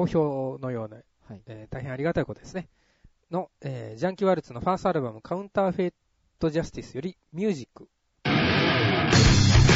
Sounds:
speech, radio, music

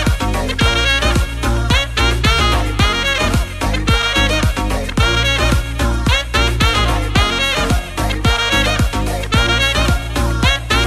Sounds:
playing saxophone

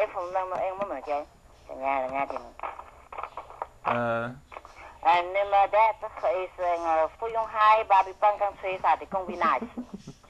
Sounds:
speech, radio

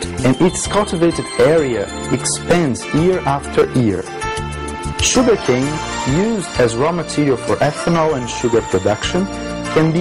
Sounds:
music, speech

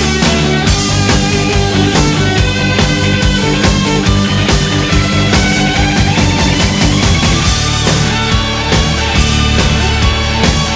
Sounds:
dance music, plucked string instrument, musical instrument, strum, music, electric guitar, guitar, soundtrack music, theme music

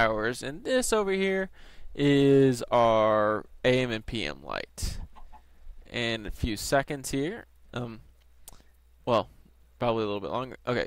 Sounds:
speech

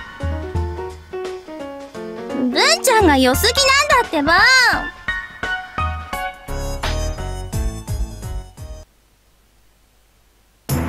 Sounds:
speech, music

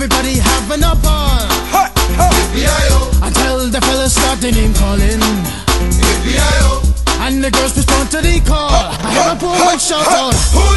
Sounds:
reggae

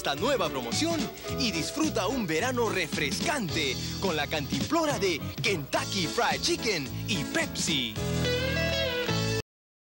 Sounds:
music, speech

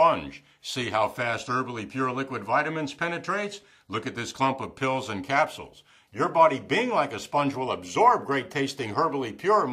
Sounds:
speech

